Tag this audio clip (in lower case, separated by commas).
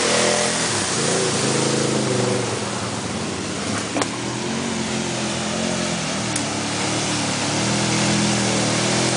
waterfall